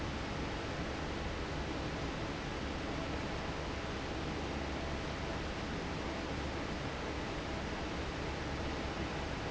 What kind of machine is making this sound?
fan